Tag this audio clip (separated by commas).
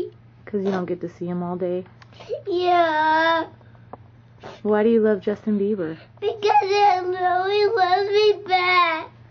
Speech